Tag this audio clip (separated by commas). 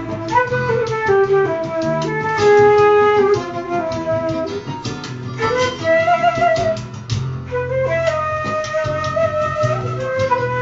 Flute, woodwind instrument, Musical instrument, Music, playing flute